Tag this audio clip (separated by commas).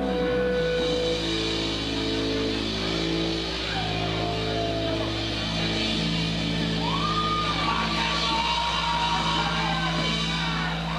Acoustic guitar, Musical instrument, Plucked string instrument, Music, Guitar, Speech, Electric guitar, Strum